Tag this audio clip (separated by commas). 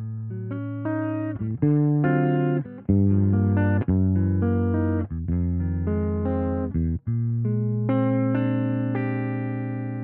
Music, Electric guitar, Plucked string instrument, Guitar, Musical instrument